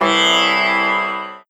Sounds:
musical instrument, music, plucked string instrument

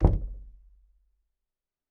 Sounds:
home sounds, door, knock, wood

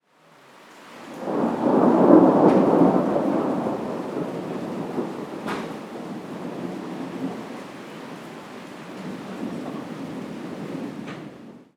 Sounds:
rain, thunderstorm, thunder, water

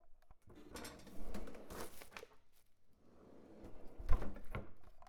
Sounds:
drawer open or close, home sounds

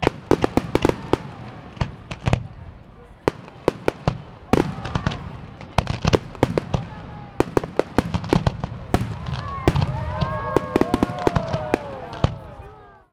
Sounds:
explosion, fireworks

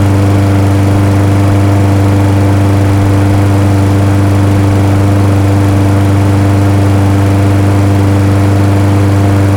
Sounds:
idling, engine

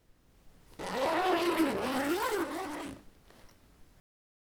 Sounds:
zipper (clothing), home sounds

